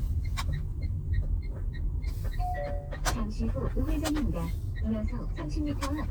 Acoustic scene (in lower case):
car